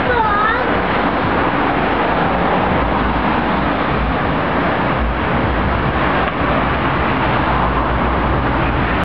Multiple vehicles pass by